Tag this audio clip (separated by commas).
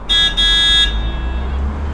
Vehicle, Motor vehicle (road), Alarm, roadway noise, Car, car horn